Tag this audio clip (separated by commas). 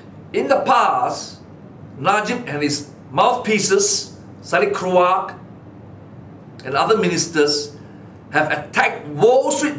Speech